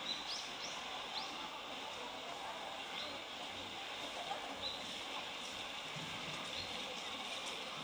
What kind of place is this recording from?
park